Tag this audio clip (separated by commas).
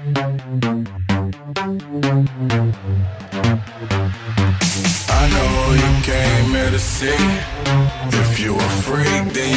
Dance music